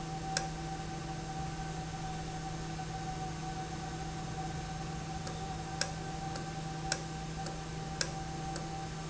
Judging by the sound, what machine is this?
valve